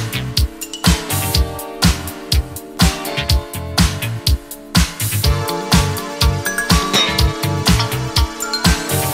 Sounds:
Disco, Music, Funk

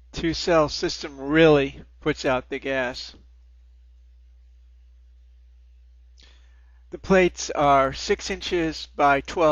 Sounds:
Speech

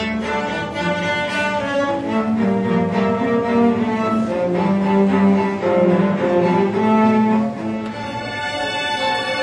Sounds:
Music, Musical instrument, playing cello, Cello

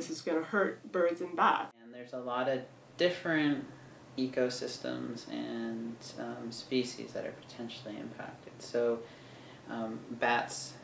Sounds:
Speech

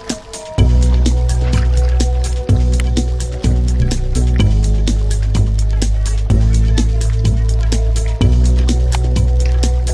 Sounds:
Music, Speech

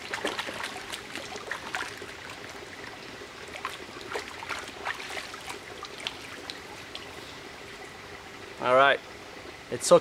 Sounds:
outside, rural or natural, Speech, Water

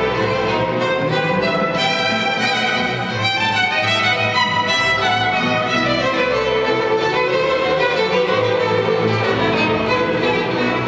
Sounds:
Violin, Music, Musical instrument

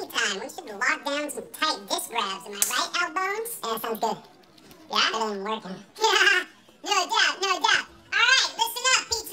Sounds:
Speech

